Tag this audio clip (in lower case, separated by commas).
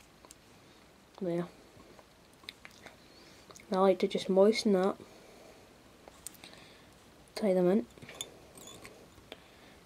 speech